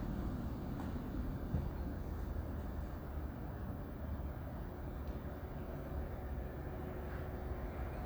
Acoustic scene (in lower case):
residential area